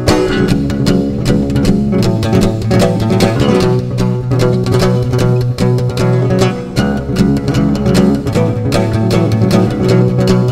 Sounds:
playing acoustic guitar

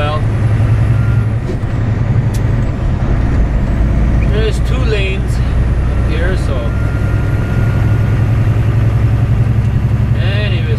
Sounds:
vehicle
truck
speech

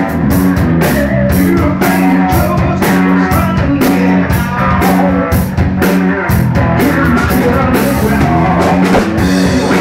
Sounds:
exciting music
music

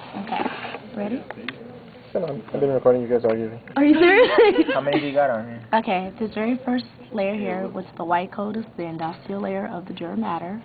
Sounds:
speech

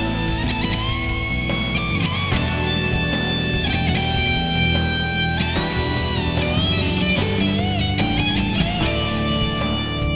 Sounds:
electric guitar
music
musical instrument
guitar
plucked string instrument
strum

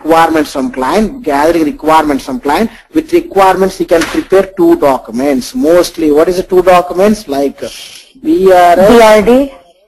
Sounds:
speech

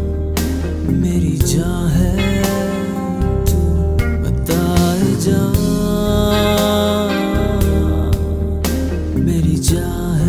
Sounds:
music
singing

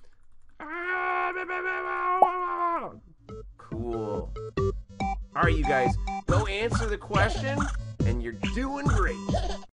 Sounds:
music
speech

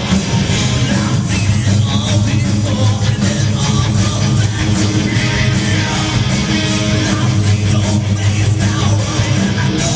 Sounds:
music

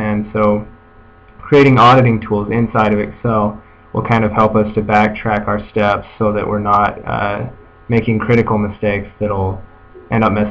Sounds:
speech

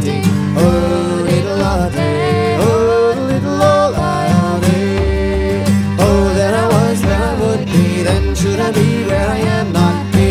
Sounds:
country
music

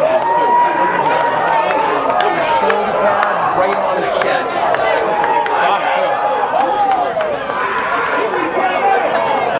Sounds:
speech

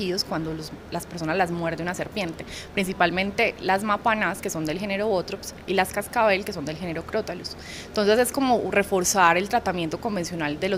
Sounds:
speech

